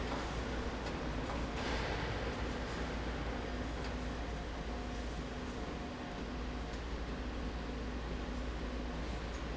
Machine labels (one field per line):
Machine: slide rail